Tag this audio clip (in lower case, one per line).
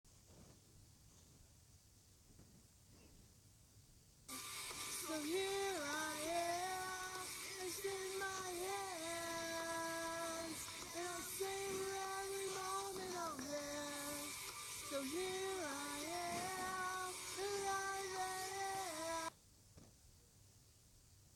singing
human voice